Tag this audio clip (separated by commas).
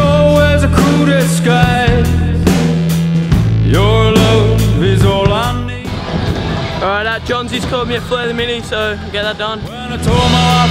Speech, Music